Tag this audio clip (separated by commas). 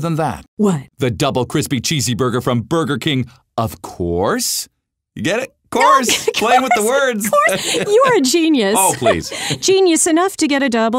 Speech